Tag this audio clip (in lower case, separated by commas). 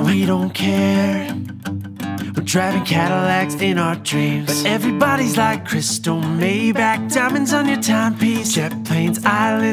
music